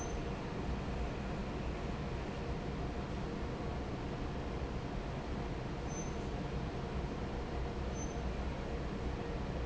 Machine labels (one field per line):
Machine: fan